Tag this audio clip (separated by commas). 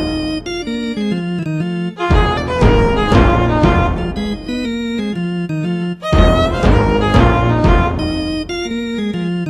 Music, Blues